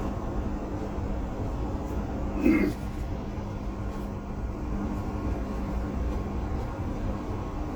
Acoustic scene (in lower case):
bus